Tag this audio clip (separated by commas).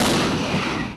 Explosion